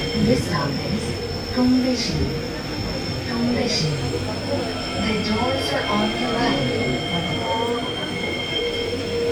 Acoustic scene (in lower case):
subway train